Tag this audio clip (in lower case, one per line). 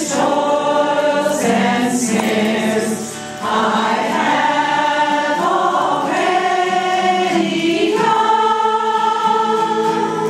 gospel music
singing
choir
christian music
music